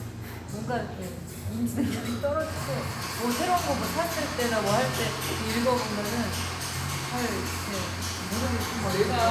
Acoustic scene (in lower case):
cafe